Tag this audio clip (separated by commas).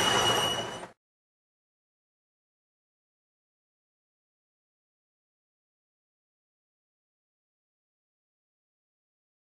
Vehicle